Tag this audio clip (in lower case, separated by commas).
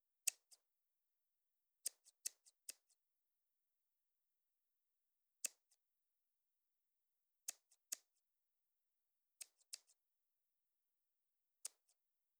home sounds, scissors